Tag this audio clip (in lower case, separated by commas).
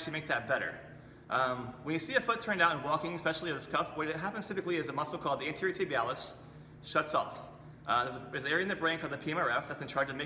speech